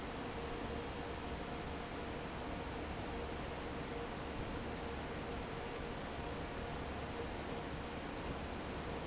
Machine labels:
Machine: fan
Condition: normal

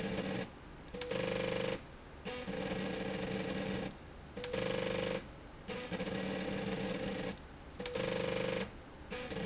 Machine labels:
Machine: slide rail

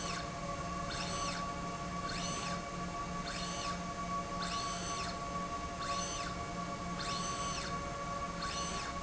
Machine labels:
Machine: slide rail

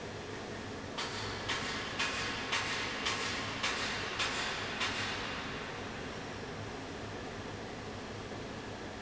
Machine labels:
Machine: fan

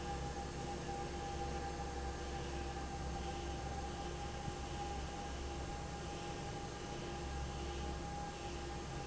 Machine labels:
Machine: fan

